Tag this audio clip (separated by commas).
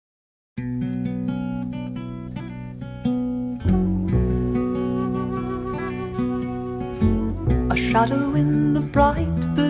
Flamenco, Acoustic guitar